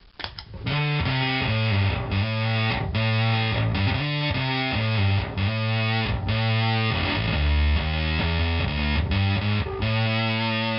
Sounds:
bass guitar, music

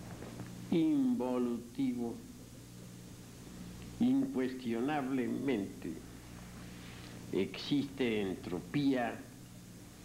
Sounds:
speech

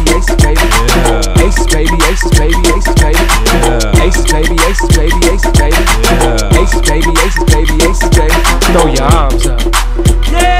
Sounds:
music

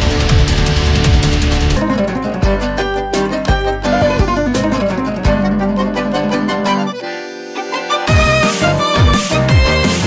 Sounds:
music

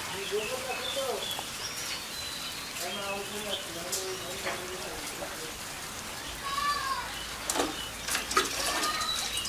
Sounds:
cuckoo bird calling

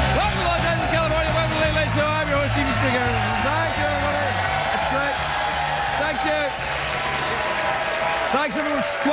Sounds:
narration, music, speech

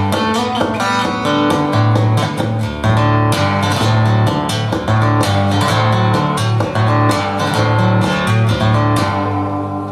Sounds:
musical instrument, acoustic guitar, music, plucked string instrument, guitar

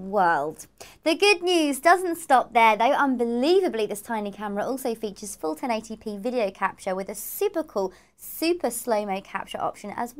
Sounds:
speech

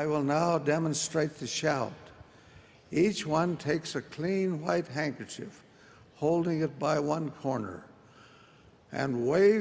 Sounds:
speech

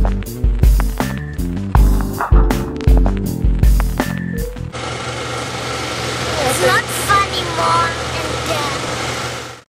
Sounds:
speech, music

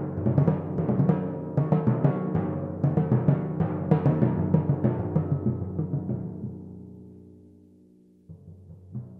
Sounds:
playing timpani

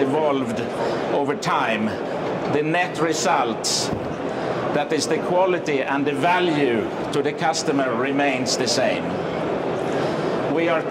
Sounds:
speech

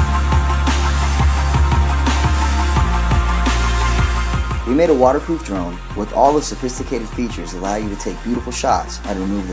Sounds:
speech, music

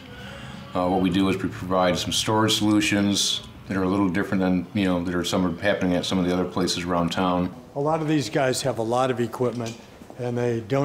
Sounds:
speech

